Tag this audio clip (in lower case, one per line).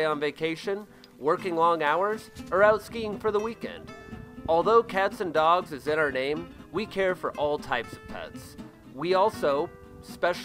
music
speech